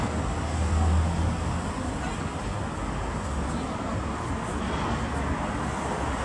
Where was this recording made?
on a street